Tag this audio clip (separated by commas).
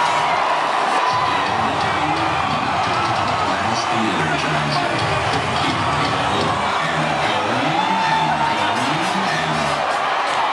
Song, Cheering, people cheering, Singing